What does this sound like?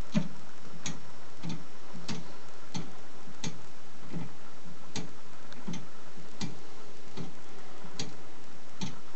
Rhythmic metal clicking is ongoing in an otherwise quiet environment